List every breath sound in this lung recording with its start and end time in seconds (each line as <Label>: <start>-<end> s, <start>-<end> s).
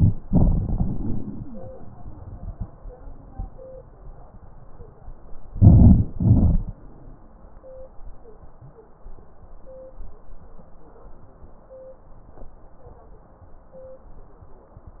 Inhalation: 5.49-6.11 s
Exhalation: 0.22-1.72 s, 6.14-6.75 s
Wheeze: 1.20-1.72 s
Crackles: 5.48-6.09 s, 6.14-6.75 s